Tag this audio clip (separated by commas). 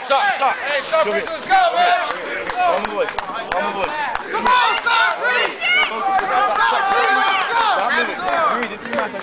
Speech